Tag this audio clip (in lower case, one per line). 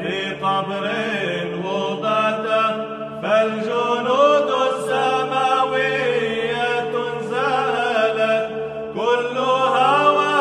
mantra
music